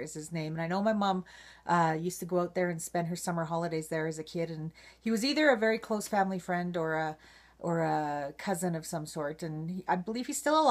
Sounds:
Speech

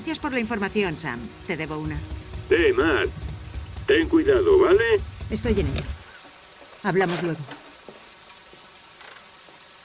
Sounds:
Rain on surface, Speech

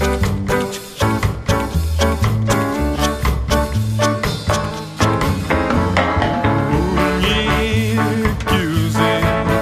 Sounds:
Music

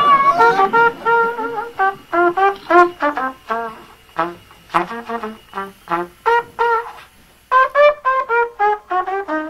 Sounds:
playing cornet

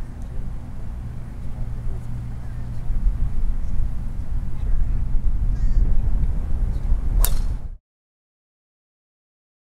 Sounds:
golf driving

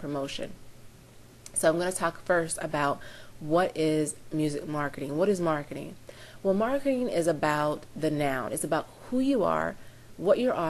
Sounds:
Speech

